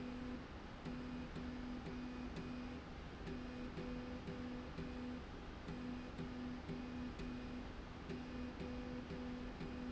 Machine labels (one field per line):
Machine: slide rail